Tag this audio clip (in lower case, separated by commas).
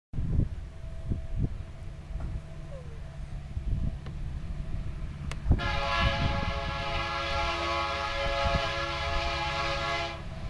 railroad car, train, rail transport, vehicle